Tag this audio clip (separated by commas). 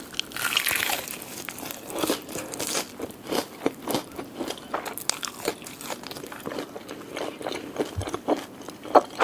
people eating crisps